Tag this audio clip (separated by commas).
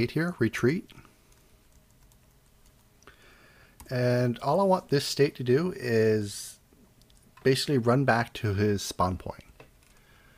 Computer keyboard